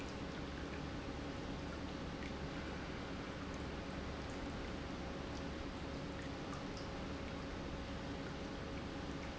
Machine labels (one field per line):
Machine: pump